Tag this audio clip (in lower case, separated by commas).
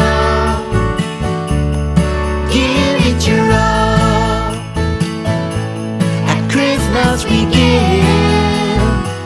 music